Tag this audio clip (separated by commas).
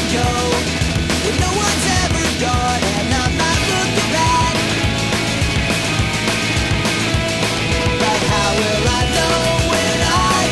Music